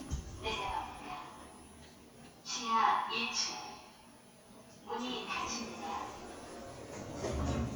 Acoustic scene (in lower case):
elevator